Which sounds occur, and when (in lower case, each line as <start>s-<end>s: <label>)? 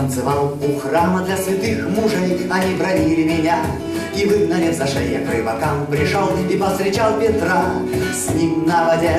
0.0s-3.8s: male singing
0.0s-9.1s: music
3.7s-4.0s: breathing
4.0s-7.8s: male singing
7.9s-8.1s: breathing
8.1s-9.1s: male singing